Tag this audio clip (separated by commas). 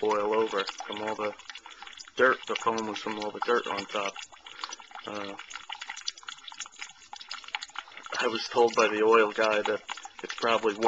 Speech